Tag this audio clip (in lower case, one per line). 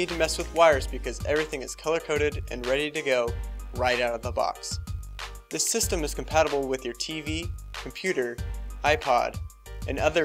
music
speech